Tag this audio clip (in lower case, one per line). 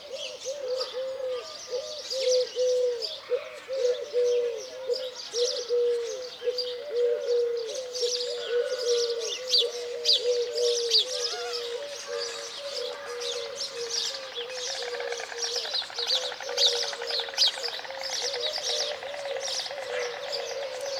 animal
bird
wild animals